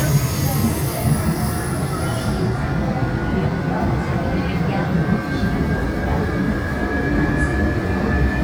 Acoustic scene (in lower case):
subway train